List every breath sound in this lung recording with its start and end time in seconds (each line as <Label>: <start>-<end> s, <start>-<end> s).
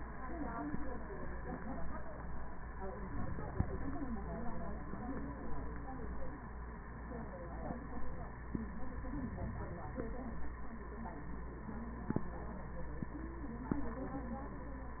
Inhalation: 8.88-10.38 s